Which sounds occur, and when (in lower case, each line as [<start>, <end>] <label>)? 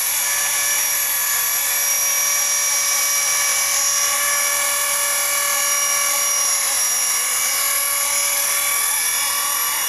[0.00, 9.85] buzz
[0.00, 9.85] mechanisms